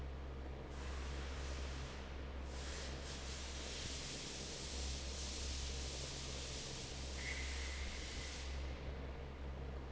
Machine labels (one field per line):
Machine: fan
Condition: normal